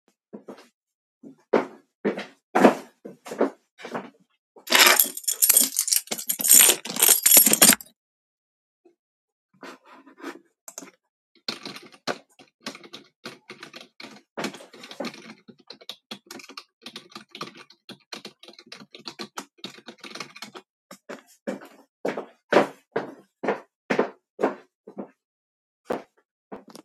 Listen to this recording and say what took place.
walked to the table. checked my keys. typed on keyboard and then walked back.